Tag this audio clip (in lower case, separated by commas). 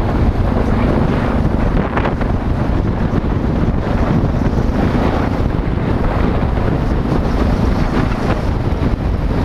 motor vehicle (road), car, traffic noise, motorcycle, vehicle